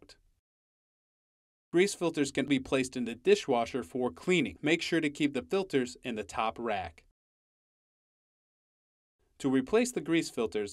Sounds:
Speech

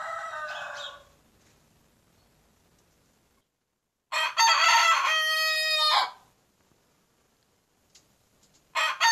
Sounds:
chicken crowing

